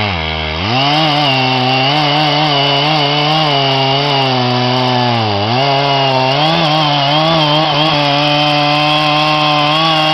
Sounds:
Chainsaw, chainsawing trees

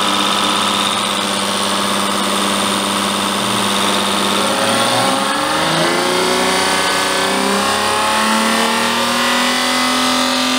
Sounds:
Engine

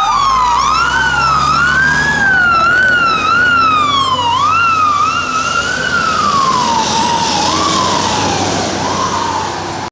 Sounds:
Engine, Vehicle

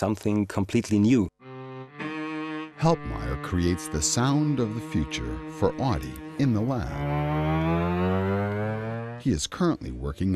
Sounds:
Music, Speech

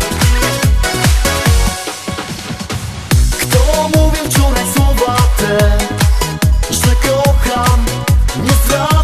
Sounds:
Music, Exciting music

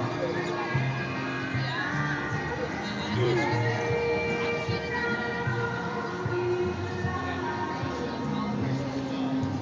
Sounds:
Speech, Music

